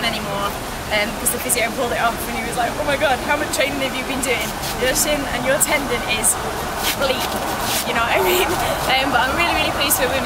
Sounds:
Speech

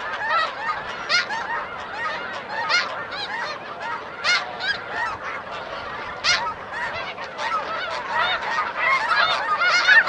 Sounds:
Honk, goose honking

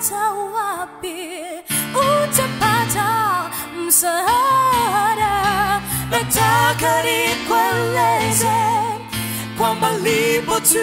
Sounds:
Singing, Choir, Music

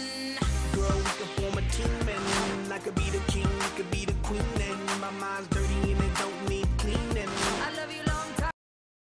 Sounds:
Music

